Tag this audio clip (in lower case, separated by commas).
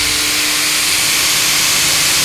tools